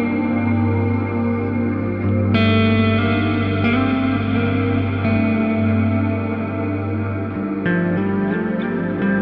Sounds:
music

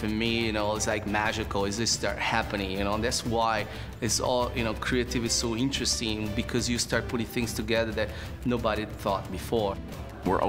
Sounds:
music, speech

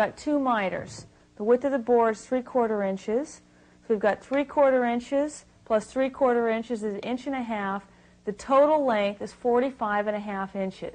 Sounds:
speech

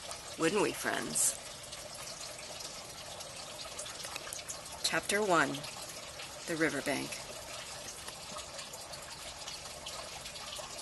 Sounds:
speech

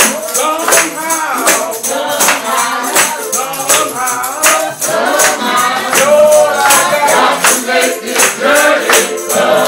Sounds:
music, independent music

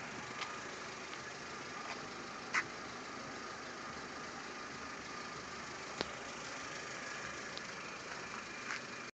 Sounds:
vehicle

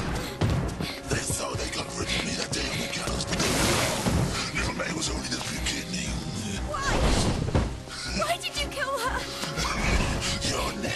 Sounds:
speech, music

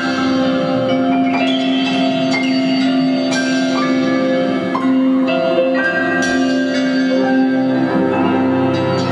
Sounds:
sound effect, music

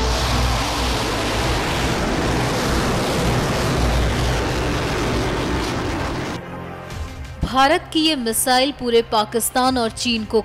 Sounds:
missile launch

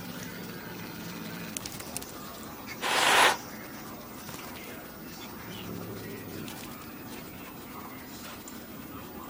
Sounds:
cat growling

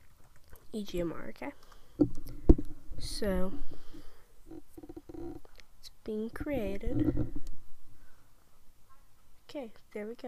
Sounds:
speech

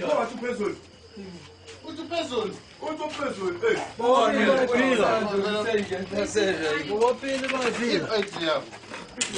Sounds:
speech, inside a small room

